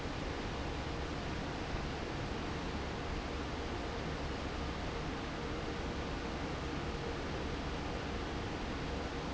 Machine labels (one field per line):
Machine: fan